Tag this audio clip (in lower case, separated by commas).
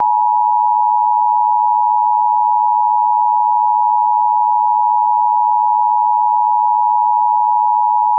alarm